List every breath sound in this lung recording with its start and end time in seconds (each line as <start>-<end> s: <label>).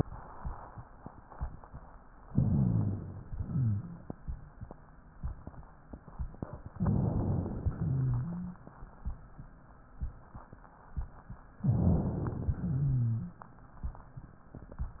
2.33-3.25 s: inhalation
2.33-3.25 s: rhonchi
3.28-4.19 s: exhalation
3.28-4.19 s: rhonchi
6.74-7.65 s: inhalation
6.74-7.65 s: rhonchi
7.74-8.65 s: exhalation
7.74-8.65 s: rhonchi
11.61-12.52 s: inhalation
12.50-13.41 s: exhalation
12.50-13.41 s: rhonchi